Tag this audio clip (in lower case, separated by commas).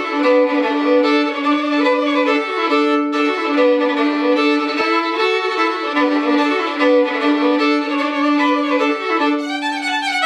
musical instrument, fiddle, music